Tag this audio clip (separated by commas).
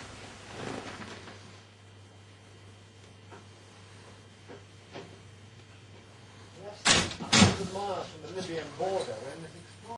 Speech